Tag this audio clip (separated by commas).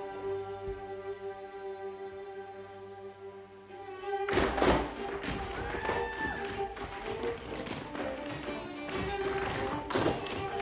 Tap, Music